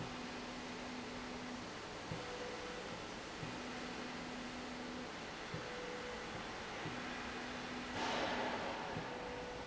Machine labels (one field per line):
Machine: slide rail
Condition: normal